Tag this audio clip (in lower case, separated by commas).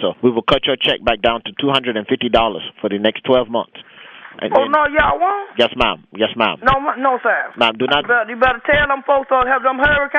speech